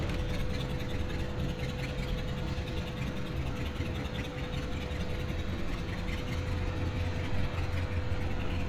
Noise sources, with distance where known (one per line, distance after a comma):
engine of unclear size, near